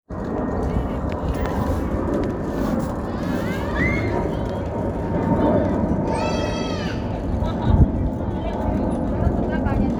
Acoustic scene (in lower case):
residential area